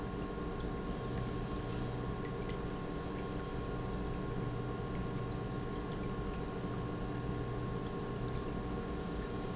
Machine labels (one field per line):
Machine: pump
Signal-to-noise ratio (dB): -6 dB